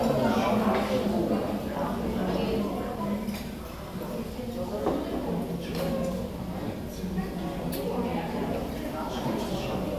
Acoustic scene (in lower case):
crowded indoor space